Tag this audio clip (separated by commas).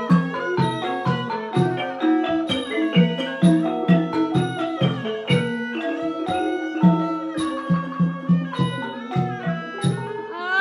Classical music, Music